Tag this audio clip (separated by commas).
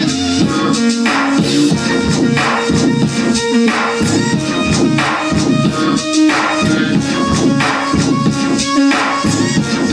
Music